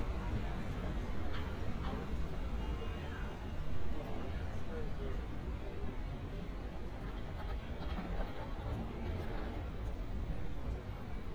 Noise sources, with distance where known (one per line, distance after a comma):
person or small group talking, far